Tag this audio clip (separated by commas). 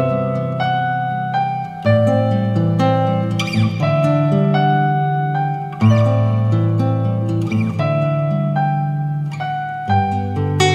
Music, Keyboard (musical)